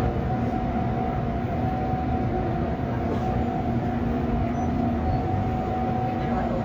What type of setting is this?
subway train